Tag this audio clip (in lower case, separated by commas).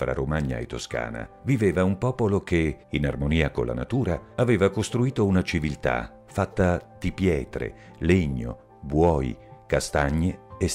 music, speech